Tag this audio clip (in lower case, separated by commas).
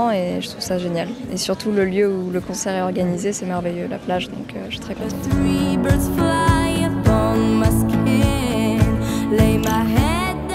music, speech